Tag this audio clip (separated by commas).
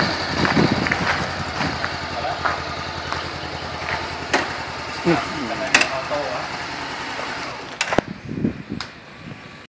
Speech